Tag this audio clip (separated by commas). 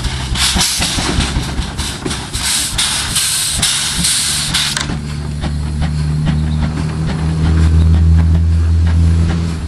Heavy engine (low frequency)